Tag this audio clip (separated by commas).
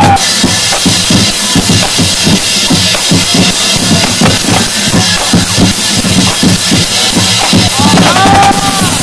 people marching